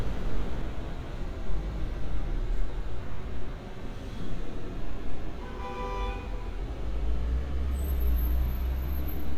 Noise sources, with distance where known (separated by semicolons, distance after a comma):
medium-sounding engine, near; car horn, near